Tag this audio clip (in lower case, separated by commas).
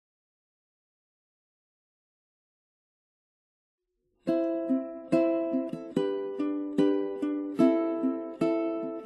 playing ukulele